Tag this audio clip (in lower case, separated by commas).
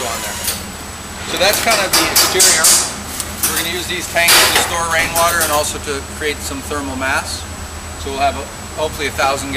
speech, outside, urban or man-made